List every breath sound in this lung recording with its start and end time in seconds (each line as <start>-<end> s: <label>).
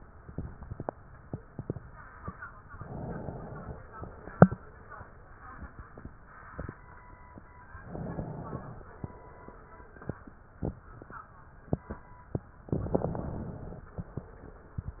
2.75-3.93 s: inhalation
3.94-4.99 s: exhalation
7.75-8.92 s: inhalation
8.96-10.00 s: exhalation
12.68-13.86 s: inhalation
13.87-14.91 s: exhalation